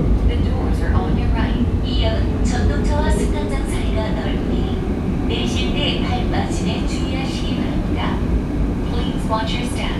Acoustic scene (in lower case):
subway train